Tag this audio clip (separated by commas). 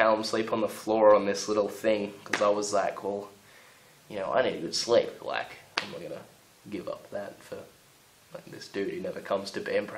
Speech, inside a small room